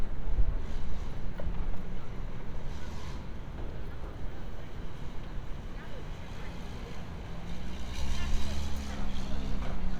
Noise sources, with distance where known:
small-sounding engine, far; person or small group talking, far

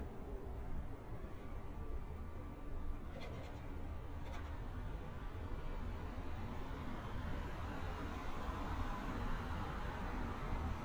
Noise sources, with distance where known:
engine of unclear size

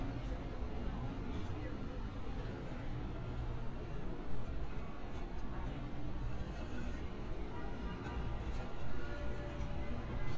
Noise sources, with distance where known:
car horn, far; unidentified alert signal, far; person or small group talking, far

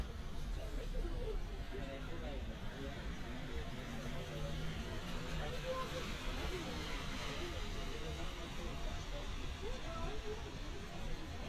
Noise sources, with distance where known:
person or small group talking, far

